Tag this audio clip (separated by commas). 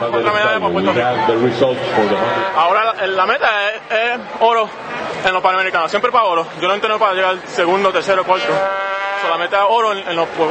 Speech, outside, urban or man-made